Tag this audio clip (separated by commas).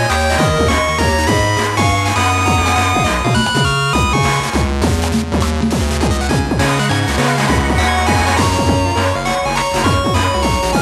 Soundtrack music, Music